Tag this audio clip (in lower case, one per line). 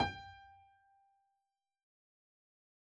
musical instrument
music
keyboard (musical)
piano